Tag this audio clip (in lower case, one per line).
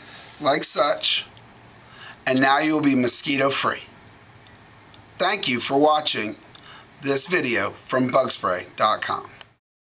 speech